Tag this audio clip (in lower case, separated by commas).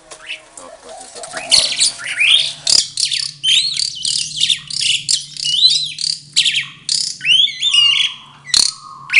mynah bird singing